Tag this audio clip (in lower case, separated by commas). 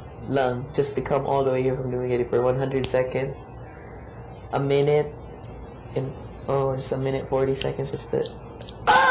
conversation, speech